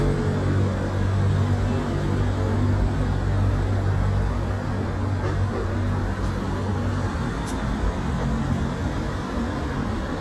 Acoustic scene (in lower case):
street